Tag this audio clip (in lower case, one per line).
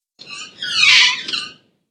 squeak